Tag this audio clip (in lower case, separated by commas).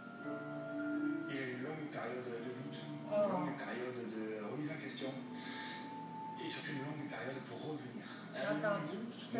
speech, music